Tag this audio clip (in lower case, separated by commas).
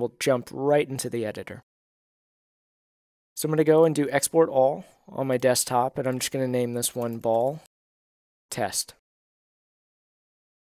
speech